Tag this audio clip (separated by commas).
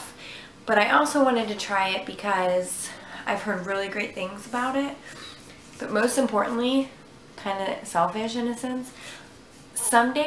Speech